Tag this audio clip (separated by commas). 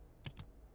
Typing, Domestic sounds